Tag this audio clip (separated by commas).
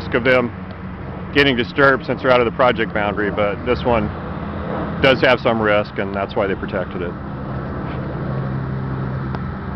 Speech, outside, urban or man-made